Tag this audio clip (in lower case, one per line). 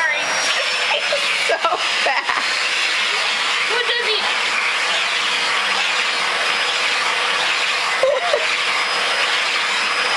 speech